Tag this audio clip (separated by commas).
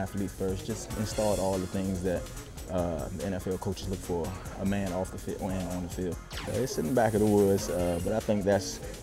Speech, Music